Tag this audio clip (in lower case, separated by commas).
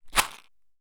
rattle